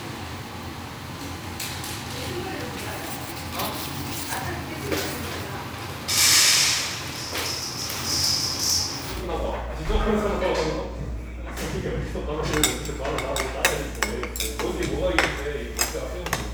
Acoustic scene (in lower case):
restaurant